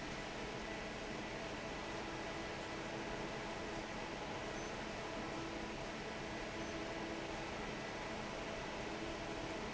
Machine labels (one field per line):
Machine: fan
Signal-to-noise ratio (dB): 6 dB